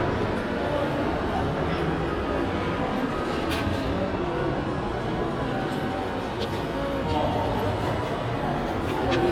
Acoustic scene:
crowded indoor space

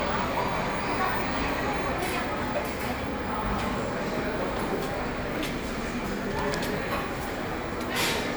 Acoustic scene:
cafe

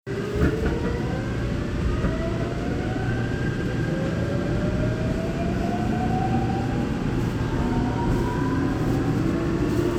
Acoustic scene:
subway train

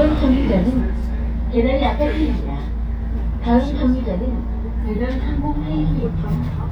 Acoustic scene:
bus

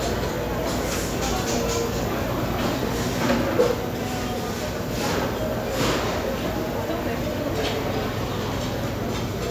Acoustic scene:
crowded indoor space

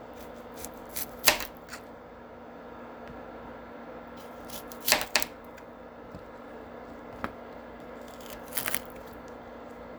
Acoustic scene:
kitchen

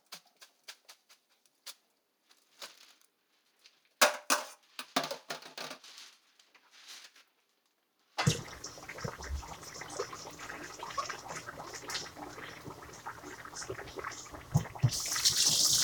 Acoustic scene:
kitchen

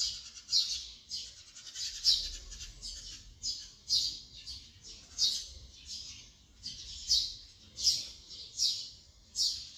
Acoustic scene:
park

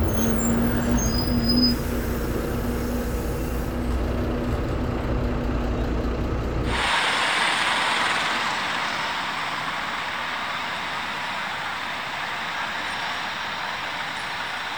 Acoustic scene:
street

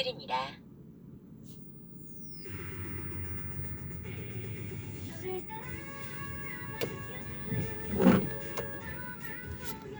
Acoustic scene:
car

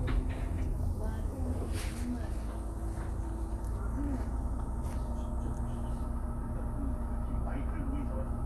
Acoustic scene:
bus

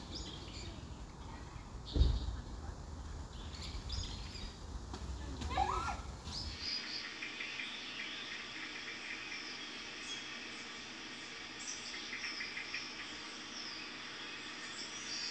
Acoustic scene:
park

